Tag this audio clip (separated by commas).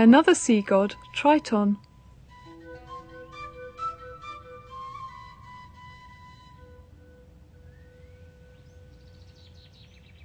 Music, Speech